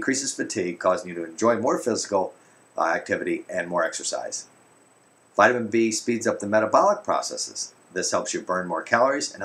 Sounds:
speech

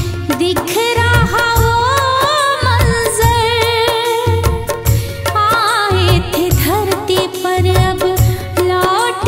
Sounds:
music of bollywood, music

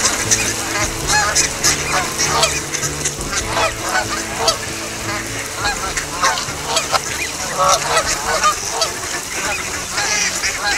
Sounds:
outside, rural or natural, music, duck, bird

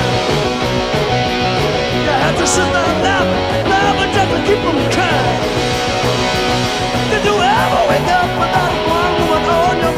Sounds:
music

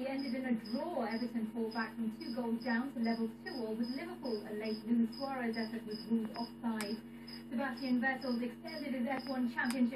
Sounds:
speech

